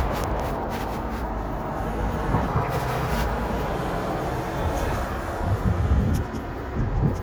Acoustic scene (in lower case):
street